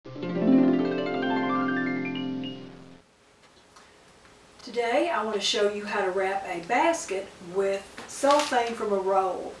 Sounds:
music
speech

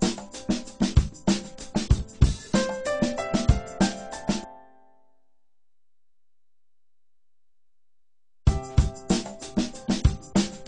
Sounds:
music

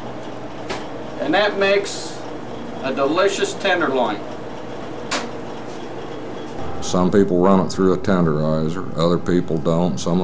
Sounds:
speech
inside a small room

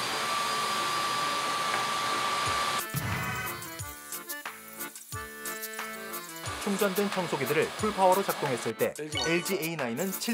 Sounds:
vacuum cleaner cleaning floors

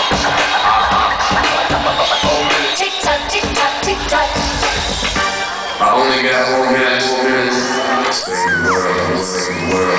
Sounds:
music
speech

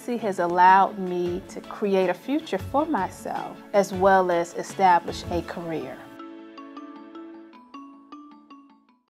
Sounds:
music
speech

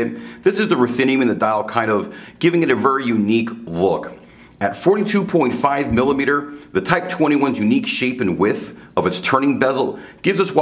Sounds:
speech

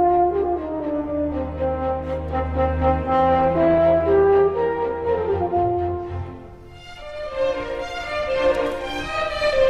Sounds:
playing french horn

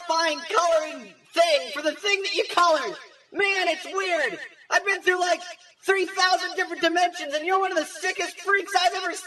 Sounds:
narration
man speaking
speech

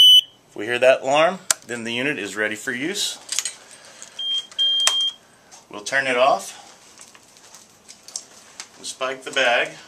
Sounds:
speech

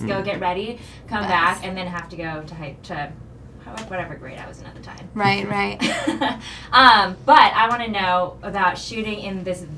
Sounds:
speech

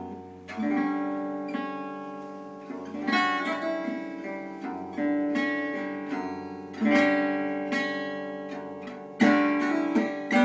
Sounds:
music
guitar
acoustic guitar
plucked string instrument
musical instrument
strum

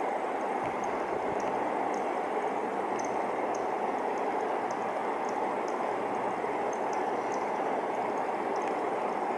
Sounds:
cricket chirping

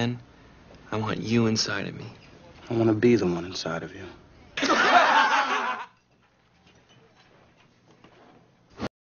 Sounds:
speech

